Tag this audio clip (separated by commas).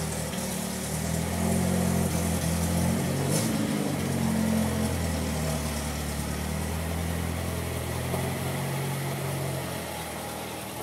Medium engine (mid frequency), Vehicle, Car